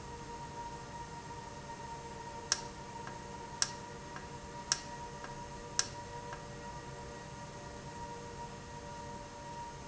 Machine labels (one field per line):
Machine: valve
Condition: normal